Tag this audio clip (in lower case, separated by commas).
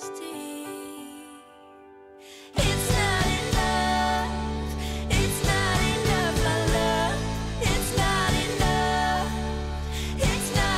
music